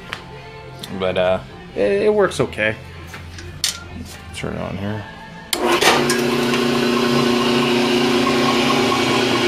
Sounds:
music, inside a small room, speech

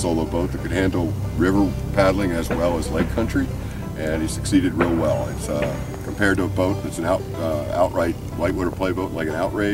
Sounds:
vehicle, music, speech

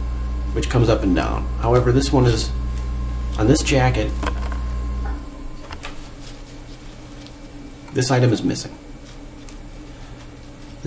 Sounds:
speech

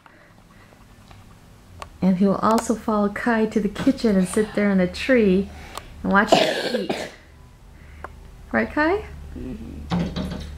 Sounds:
cough, speech

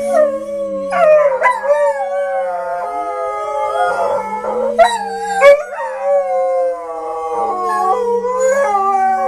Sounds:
dog howling

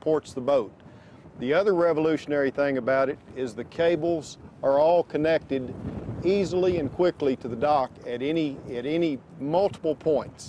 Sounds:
speech

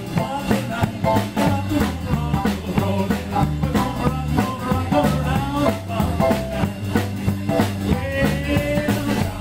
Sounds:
music, tick

